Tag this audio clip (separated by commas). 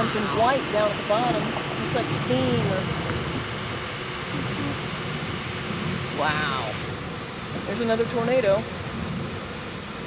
Speech